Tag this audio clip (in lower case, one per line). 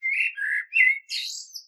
bird
animal
wild animals